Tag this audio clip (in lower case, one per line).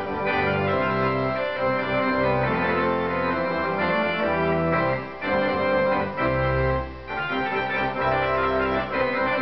playing electronic organ